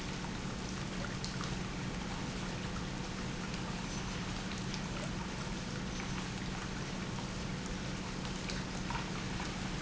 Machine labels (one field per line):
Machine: pump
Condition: normal